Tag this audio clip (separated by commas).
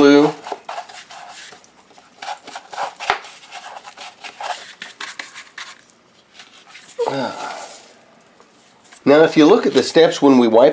Speech